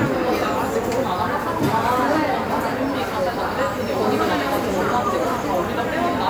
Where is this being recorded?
in a cafe